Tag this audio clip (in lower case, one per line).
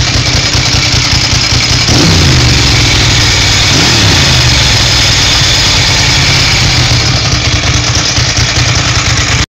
clatter